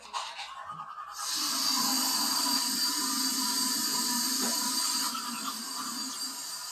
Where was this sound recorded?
in a restroom